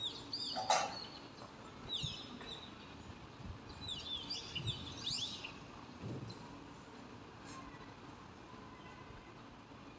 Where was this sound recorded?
in a residential area